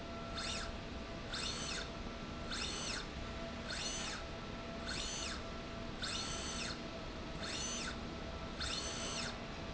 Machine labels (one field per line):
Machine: slide rail